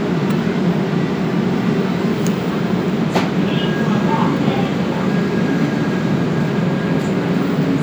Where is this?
in a subway station